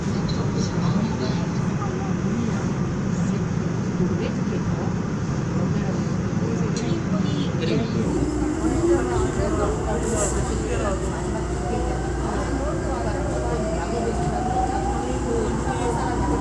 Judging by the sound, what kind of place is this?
subway train